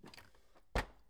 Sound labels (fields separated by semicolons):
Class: drawer; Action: opening; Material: wooden